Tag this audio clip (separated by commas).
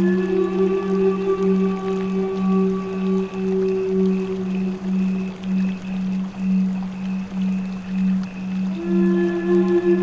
Music, Tender music, Flute, Background music